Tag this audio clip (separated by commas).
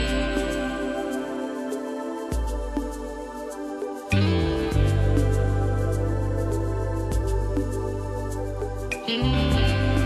Tender music, Soundtrack music, Music